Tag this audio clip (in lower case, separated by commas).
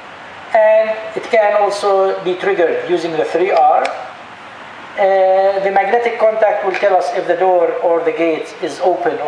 speech